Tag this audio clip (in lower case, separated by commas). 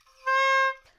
wind instrument, musical instrument, music